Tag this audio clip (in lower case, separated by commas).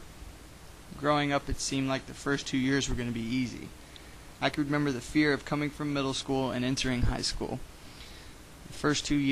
speech, male speech